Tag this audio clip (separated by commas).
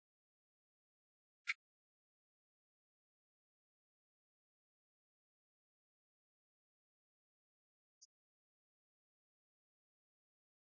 Speech